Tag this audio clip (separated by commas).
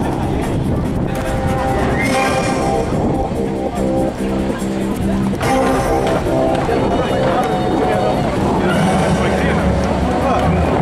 Waterfall, Speech, Music